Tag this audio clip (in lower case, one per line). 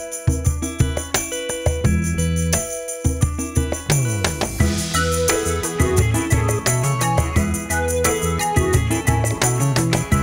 jingle
music